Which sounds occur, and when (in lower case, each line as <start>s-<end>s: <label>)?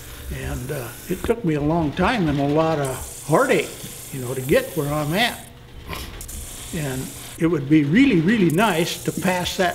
0.0s-9.7s: mechanisms
0.3s-3.0s: male speech
1.2s-1.3s: generic impact sounds
3.2s-3.9s: male speech
3.8s-3.9s: generic impact sounds
4.1s-5.5s: male speech
5.8s-6.2s: generic impact sounds
6.7s-7.1s: male speech
7.4s-9.7s: male speech
9.2s-9.4s: generic impact sounds